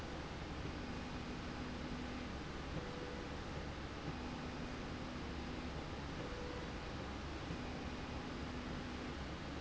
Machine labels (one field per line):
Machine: slide rail